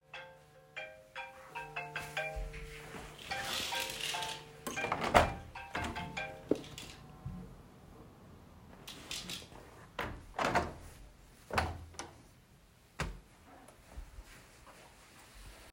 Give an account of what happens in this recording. I walked through the room while a phone notification sounded. During the same scene, I opened and closed the window.